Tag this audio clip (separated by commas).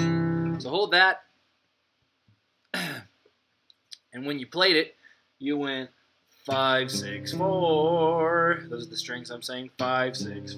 Acoustic guitar, Musical instrument, Plucked string instrument, Music, Speech